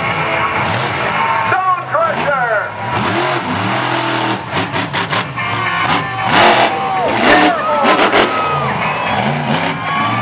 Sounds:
Speech, Car, Vehicle

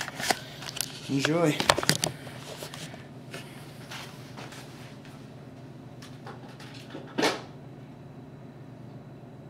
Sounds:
Speech

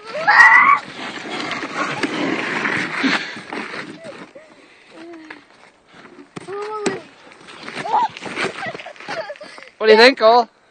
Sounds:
Domestic animals, Animal, Speech

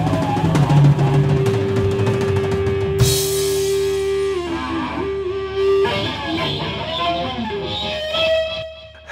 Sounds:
Music, Electric guitar, Rimshot

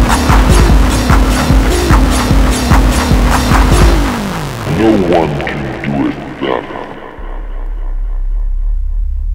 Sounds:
Techno, Electronic music, Music

